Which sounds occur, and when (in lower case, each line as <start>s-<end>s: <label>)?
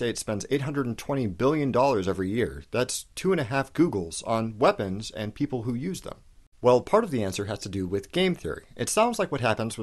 0.0s-3.0s: man speaking
0.0s-9.8s: background noise
3.1s-6.1s: man speaking
6.6s-8.6s: man speaking
8.7s-9.8s: man speaking